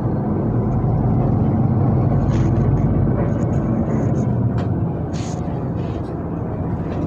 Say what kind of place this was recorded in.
bus